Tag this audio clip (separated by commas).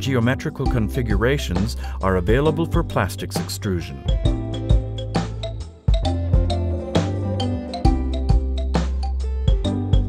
Music, Speech